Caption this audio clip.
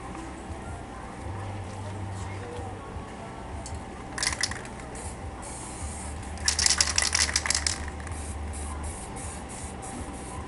Clacking, ticking, and music playing